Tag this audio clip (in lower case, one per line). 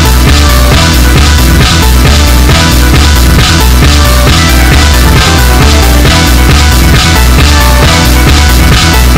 sampler
music